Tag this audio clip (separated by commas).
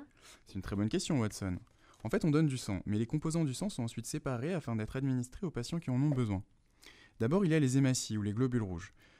Speech